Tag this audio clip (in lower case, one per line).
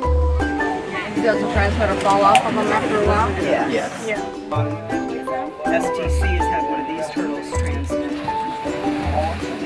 music
speech